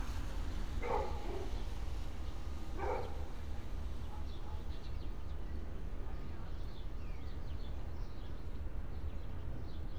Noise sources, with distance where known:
dog barking or whining, far

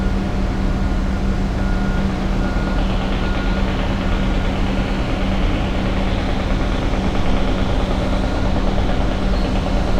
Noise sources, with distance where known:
large-sounding engine, near
reverse beeper, far

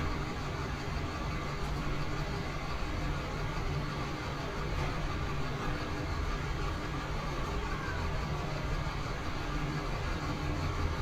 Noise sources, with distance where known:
large-sounding engine, near

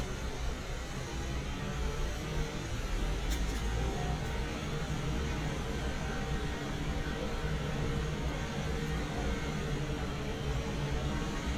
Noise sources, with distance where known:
unidentified powered saw

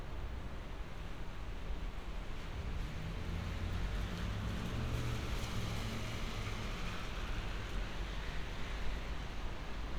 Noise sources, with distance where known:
engine of unclear size

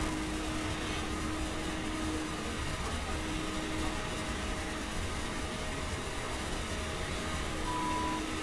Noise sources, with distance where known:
unidentified alert signal, near

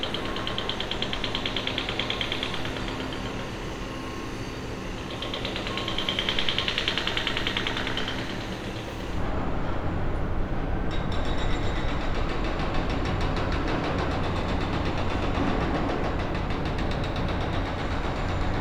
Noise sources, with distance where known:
hoe ram, near

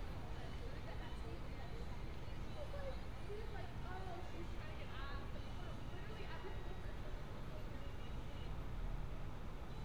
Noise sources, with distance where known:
music from a fixed source
person or small group talking, near

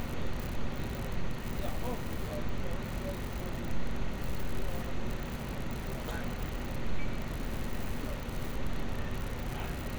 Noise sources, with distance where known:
unidentified human voice

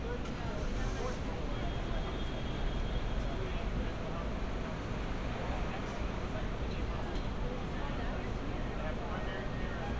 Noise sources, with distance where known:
car horn, far
person or small group talking

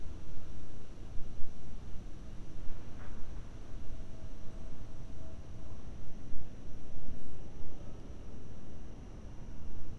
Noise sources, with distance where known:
background noise

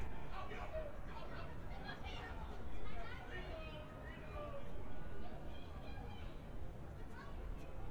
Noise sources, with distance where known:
person or small group shouting, far

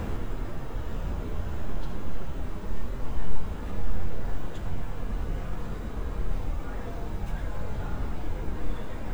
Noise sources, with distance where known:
unidentified human voice

